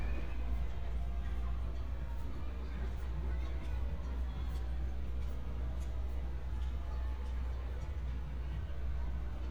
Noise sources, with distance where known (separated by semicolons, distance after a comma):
person or small group talking